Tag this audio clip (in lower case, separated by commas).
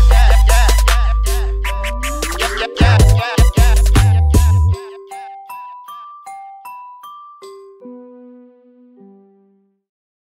music, outside, urban or man-made